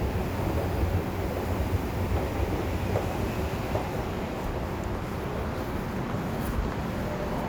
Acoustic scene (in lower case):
subway station